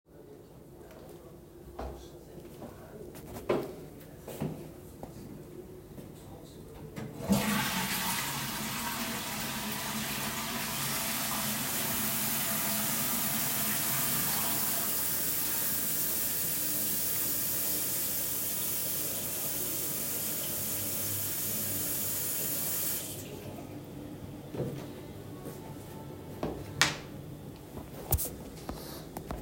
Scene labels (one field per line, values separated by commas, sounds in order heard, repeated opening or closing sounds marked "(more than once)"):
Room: bathroom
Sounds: footsteps, toilet flushing, running water